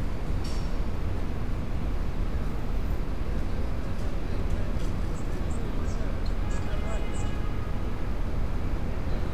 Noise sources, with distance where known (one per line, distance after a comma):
car horn, far